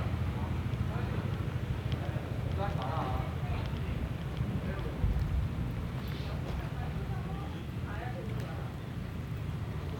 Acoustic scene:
residential area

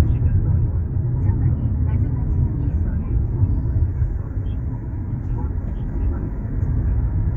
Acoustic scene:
car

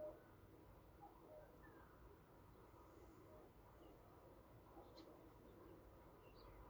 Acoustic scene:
park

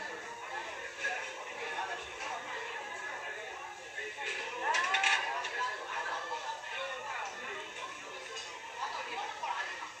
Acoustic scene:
restaurant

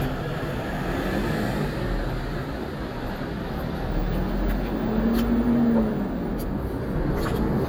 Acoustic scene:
street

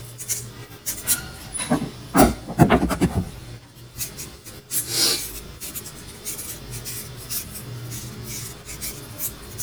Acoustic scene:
kitchen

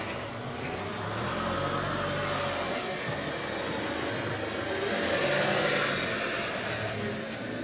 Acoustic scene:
residential area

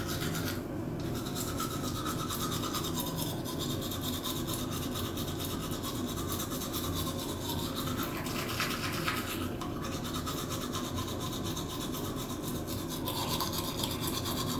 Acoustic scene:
restroom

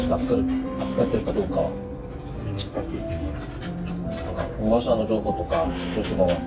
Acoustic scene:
restaurant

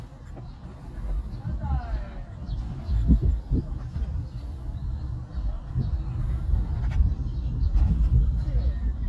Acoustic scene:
park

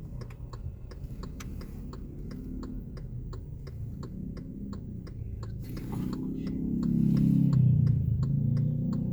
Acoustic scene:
car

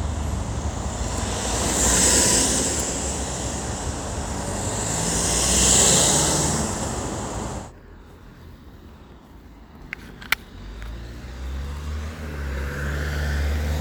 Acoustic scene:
street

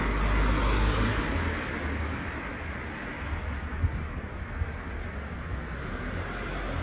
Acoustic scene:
street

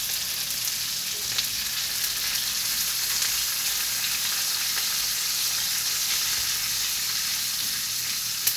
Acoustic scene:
kitchen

